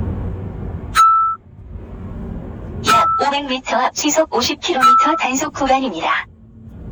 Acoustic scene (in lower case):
car